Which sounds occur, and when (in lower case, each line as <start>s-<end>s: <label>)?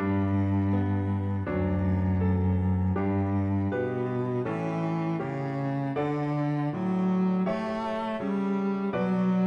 0.0s-9.4s: music